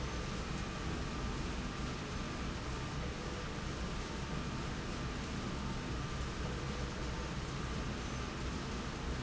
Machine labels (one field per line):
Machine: slide rail